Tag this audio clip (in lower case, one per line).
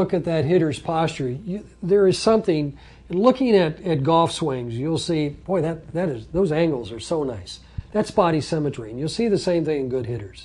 speech
inside a large room or hall